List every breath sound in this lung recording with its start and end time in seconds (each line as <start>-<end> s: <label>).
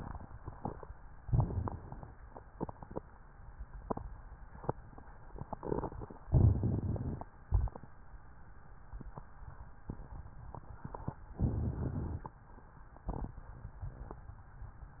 1.22-2.15 s: inhalation
1.22-2.15 s: crackles
6.30-7.24 s: inhalation
7.48-7.92 s: exhalation
11.38-12.38 s: inhalation
13.11-13.45 s: exhalation